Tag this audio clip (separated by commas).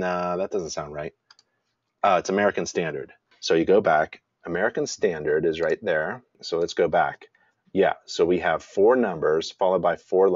Speech